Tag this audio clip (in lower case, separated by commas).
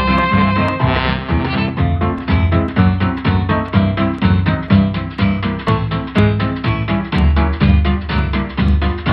music